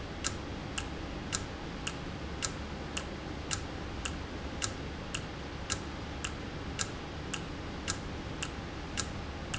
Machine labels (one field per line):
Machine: valve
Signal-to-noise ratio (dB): -6 dB